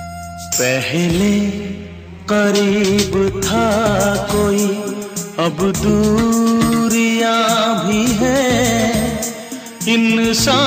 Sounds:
Music of Bollywood, Music

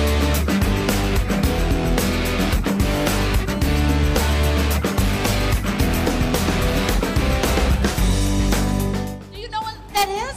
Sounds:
Speech, Music

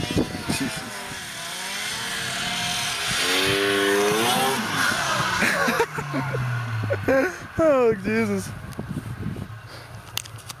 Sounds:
Speech

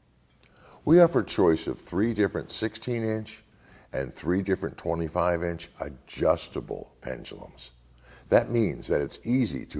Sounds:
Speech

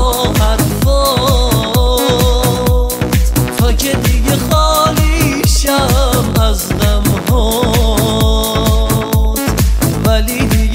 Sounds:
Trance music, House music, Rhythm and blues, Exciting music, Music

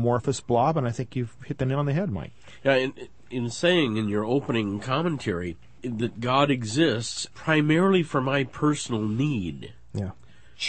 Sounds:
Speech

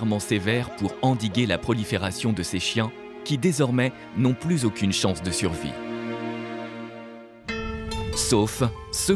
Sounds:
Music, Speech

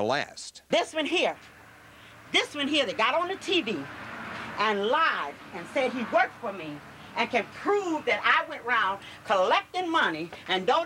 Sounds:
Speech

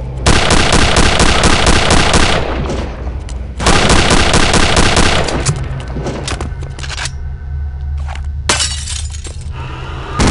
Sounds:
inside a large room or hall

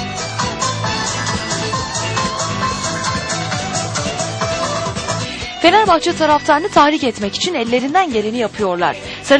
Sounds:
Speech, Music

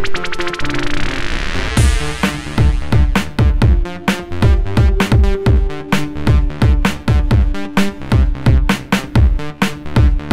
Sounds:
Music, Electronica

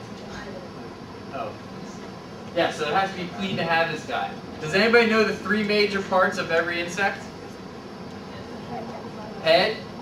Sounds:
Speech

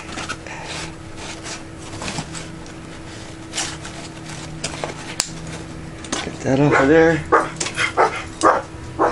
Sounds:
Animal, inside a small room, Speech

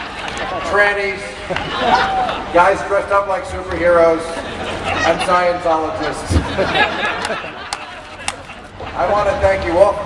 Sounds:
Speech

